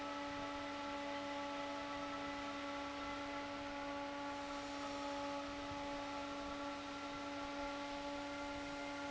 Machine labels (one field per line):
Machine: fan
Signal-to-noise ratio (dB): 6 dB